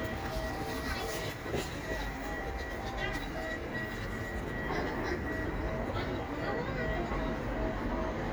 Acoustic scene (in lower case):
residential area